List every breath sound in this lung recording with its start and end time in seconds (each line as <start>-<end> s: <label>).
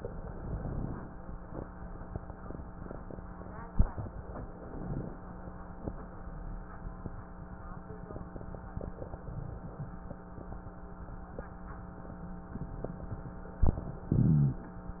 0.00-1.11 s: inhalation
4.05-5.16 s: inhalation
8.89-10.00 s: inhalation